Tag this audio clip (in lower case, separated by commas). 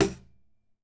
music, musical instrument, percussion, drum